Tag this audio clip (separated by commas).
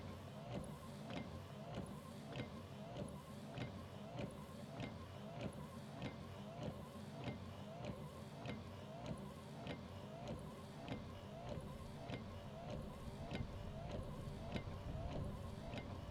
Vehicle, Motor vehicle (road)